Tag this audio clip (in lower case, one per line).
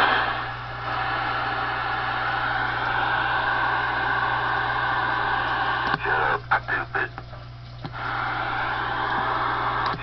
speech
radio